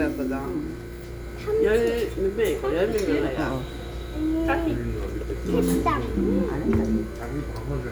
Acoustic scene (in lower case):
restaurant